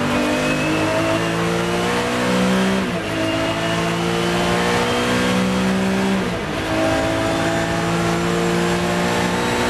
The vehicle moving in the road with great speed